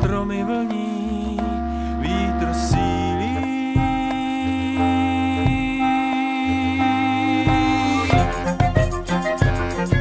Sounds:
Music

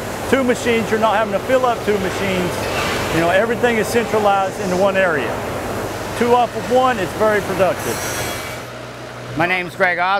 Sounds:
Speech, Engine

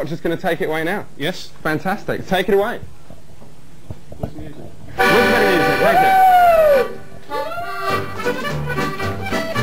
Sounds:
Music, Speech

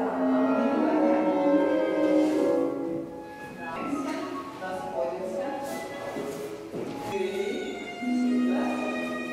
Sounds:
Classical music

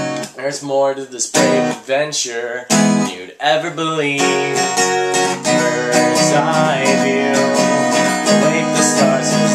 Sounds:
Music

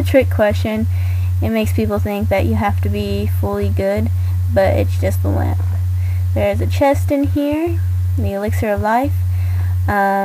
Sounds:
Speech

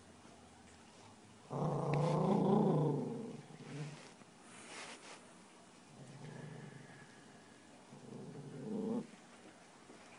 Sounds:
Yip

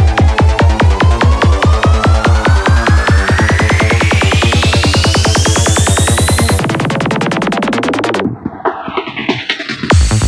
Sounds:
Music

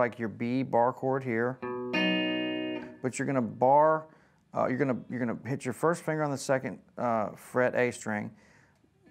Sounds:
Music, Guitar, Plucked string instrument, Electric guitar, Musical instrument, Speech

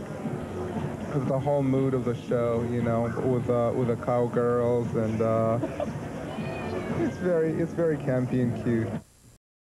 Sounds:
Domestic animals, Meow, Cat, Speech

